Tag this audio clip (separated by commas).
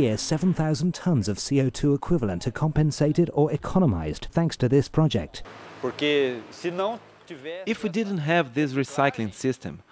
Speech